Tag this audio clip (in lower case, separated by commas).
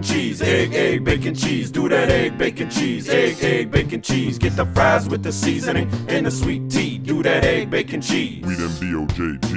jazz, music, pop music